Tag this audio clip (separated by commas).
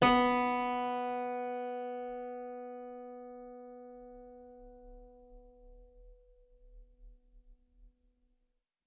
Musical instrument, Keyboard (musical), Music